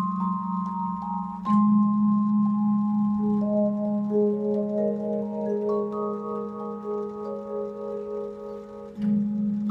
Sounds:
playing vibraphone

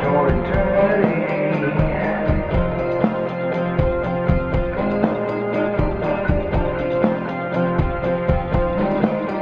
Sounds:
Music

